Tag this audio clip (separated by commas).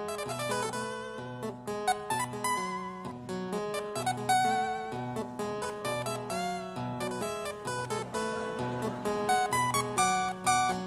playing harpsichord